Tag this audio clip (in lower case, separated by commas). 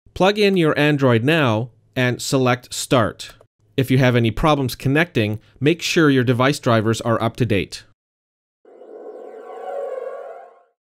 music, speech